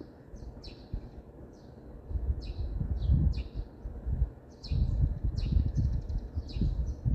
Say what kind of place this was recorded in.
residential area